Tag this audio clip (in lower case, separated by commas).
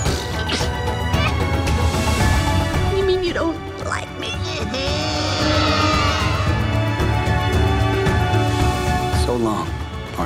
music, speech